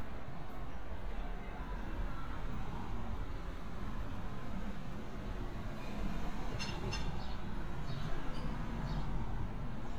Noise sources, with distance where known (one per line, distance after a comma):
engine of unclear size, far